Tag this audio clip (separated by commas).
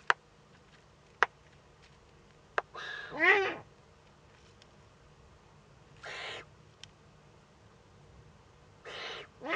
Bird, Owl, bird call